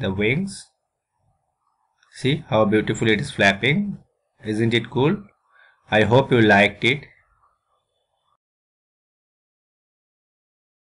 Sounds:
Speech

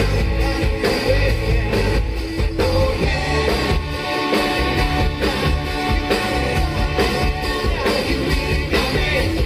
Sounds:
Singing, Music

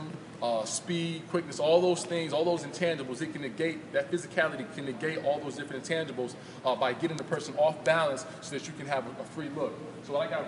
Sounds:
Speech

